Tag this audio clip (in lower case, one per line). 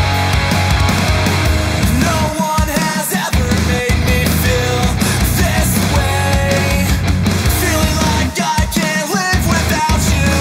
music
dance music